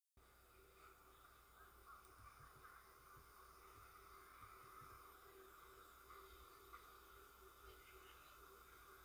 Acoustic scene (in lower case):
residential area